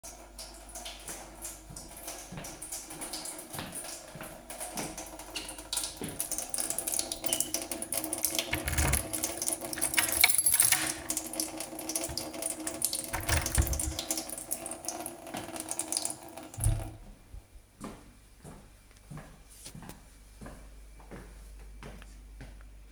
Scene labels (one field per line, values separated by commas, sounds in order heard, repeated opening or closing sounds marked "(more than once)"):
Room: kitchen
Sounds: running water, footsteps, door (more than once), keys